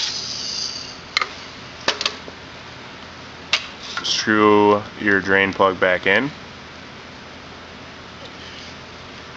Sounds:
Speech

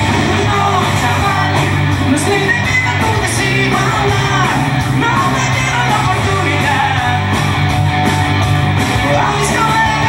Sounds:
Music, Ska

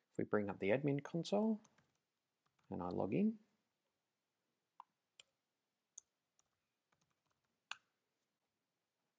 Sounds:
Speech

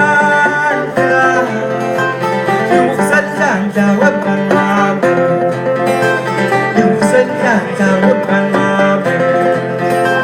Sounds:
Country, Singing, Music

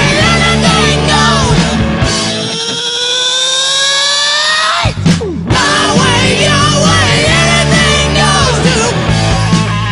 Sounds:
Music, Grunge

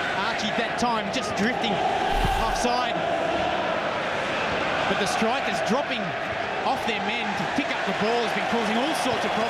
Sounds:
Speech

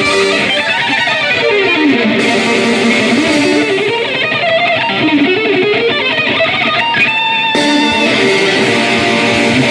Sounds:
Tapping (guitar technique), Music

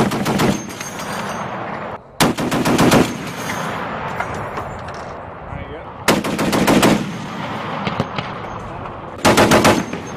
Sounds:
machine gun shooting

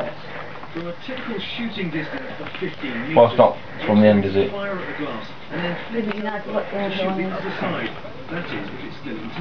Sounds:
Speech

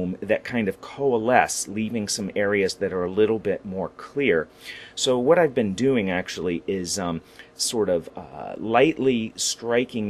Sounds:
Speech

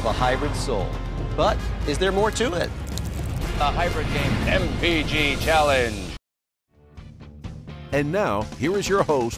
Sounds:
Music, Speech

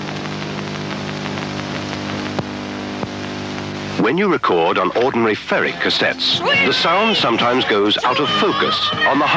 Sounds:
Speech, Television, Music

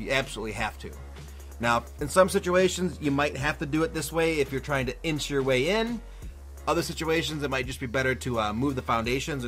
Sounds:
Speech, Music

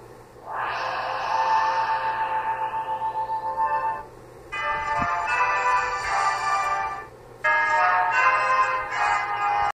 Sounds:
Television, Music

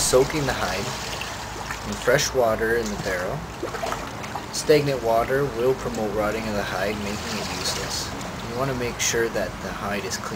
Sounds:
Speech

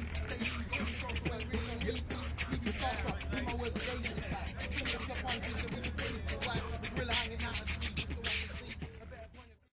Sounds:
Speech, Music

